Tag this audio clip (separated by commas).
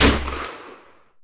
Explosion, gunfire